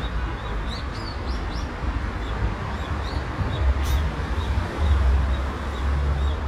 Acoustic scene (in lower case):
park